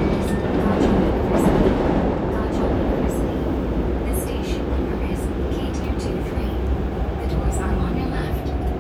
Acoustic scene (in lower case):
subway train